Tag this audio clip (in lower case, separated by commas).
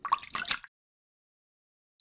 splash, liquid